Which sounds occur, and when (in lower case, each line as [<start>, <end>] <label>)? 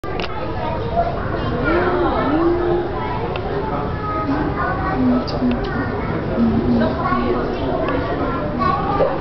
[0.00, 6.24] kid speaking
[0.00, 9.20] hubbub
[0.00, 9.20] mechanisms
[0.17, 0.28] tick
[1.61, 2.96] animal
[3.28, 3.42] tick
[3.49, 4.38] man speaking
[4.22, 4.44] animal
[4.74, 5.92] animal
[5.03, 6.94] man speaking
[6.20, 7.39] animal
[6.74, 8.40] kid speaking
[7.78, 8.46] man speaking
[7.82, 7.96] tick
[8.58, 9.20] kid speaking